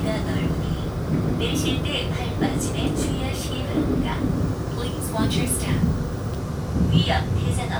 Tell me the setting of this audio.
subway train